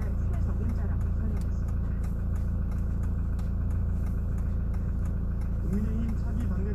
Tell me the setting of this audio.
car